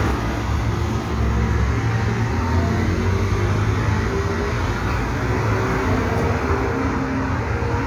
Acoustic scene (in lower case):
street